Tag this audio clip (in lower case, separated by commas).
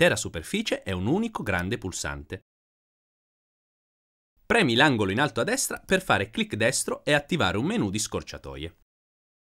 speech